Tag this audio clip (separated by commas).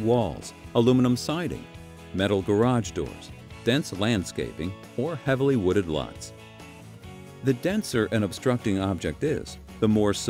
Music, Speech